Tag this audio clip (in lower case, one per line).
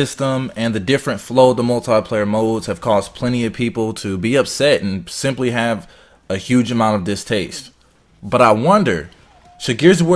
speech